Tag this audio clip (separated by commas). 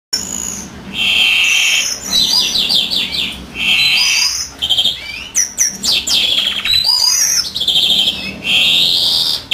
Domestic animals, Bird